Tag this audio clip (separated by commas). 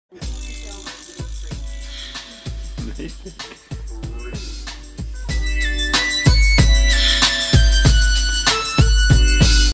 Music, Speech